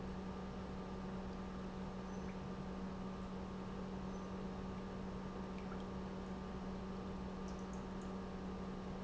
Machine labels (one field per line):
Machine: pump